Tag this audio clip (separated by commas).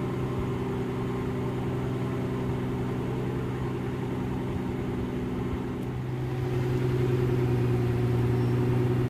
Car, Vehicle